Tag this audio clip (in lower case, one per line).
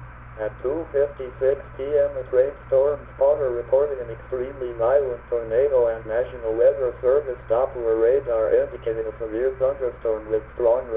radio
speech